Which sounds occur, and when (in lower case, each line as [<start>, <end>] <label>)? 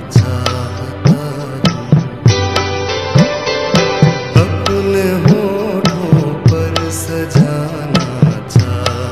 [0.00, 2.23] male singing
[0.00, 9.11] music